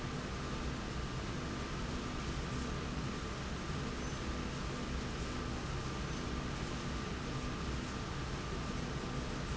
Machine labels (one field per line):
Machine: slide rail